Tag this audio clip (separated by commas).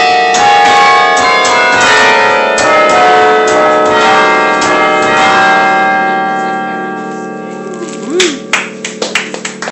Music, Speech